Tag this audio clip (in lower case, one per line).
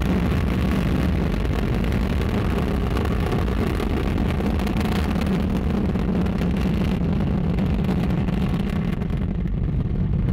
missile launch